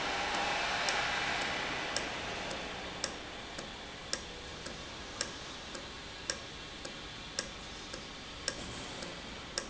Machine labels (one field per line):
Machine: valve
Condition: normal